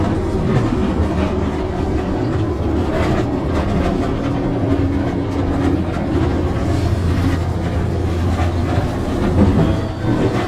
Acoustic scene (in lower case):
bus